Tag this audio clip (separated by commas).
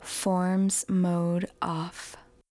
Speech, woman speaking, Human voice